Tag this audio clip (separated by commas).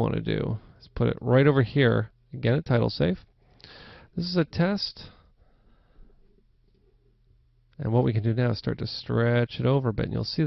Speech